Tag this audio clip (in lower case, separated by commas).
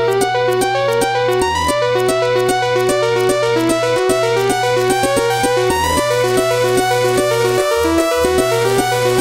music